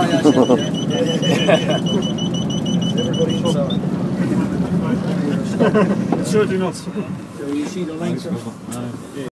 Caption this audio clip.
Adult males are speaking, a beeping sound is heard, and a small vehicle engine is running